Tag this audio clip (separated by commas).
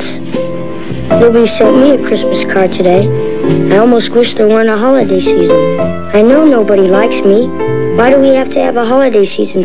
Music, Speech